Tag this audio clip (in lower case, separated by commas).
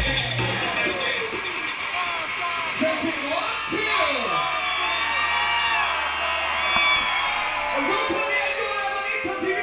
speech, music